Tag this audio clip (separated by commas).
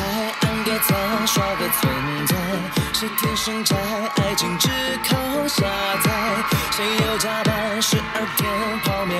Music, Soundtrack music